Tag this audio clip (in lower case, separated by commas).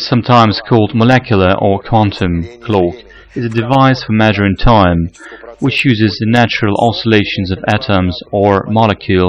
speech